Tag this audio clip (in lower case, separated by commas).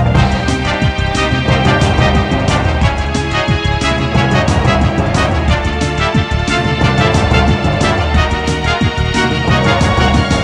music